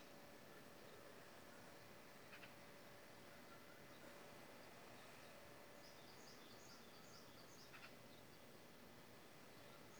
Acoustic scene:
park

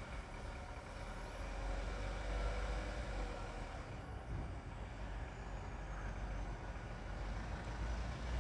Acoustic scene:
residential area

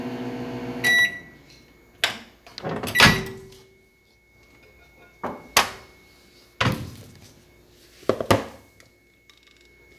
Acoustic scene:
kitchen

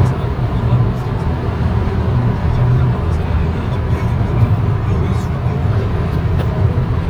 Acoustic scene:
car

